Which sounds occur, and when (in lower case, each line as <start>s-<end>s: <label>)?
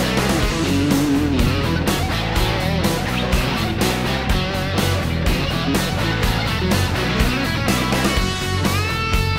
0.0s-9.3s: music